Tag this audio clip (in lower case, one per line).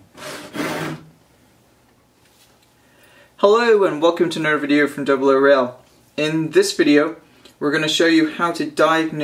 speech